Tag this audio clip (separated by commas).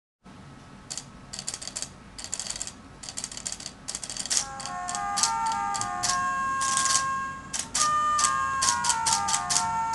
inside a large room or hall, Music